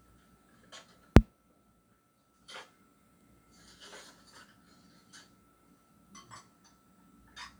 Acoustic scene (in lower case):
kitchen